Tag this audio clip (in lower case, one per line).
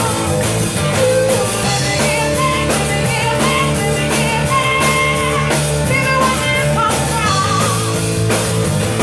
rock and roll
music